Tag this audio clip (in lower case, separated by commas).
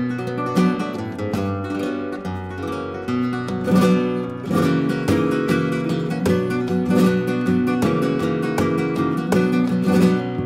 flamenco, plucked string instrument, guitar, music, musical instrument, strum